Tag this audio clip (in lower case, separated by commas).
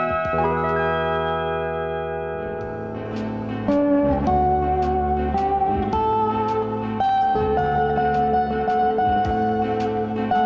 guitar, music, slide guitar